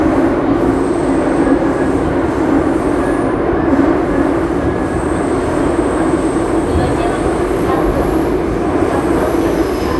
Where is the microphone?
on a subway train